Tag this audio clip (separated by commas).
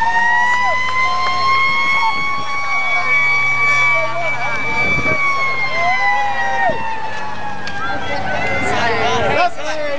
Emergency vehicle, Fire engine, Vehicle, Speech